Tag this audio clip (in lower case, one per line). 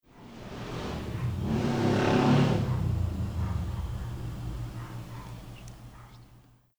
vehicle
motor vehicle (road)
motorcycle